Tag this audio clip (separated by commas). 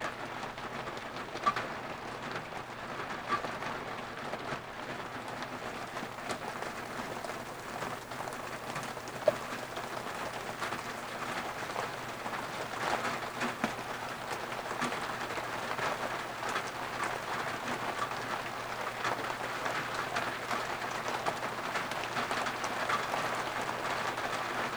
Water, Rain